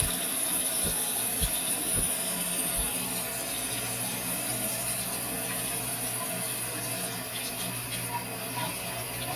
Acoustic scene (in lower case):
restroom